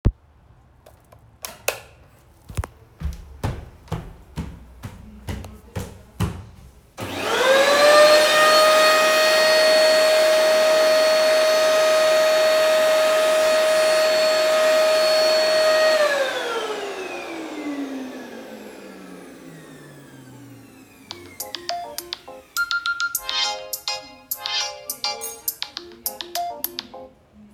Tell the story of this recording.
I turned on the light in the living room. I turend on the vaccum cleaner. The phone rang, and i turned off the vacuum cleaner. I walked towards the phone to pick it up.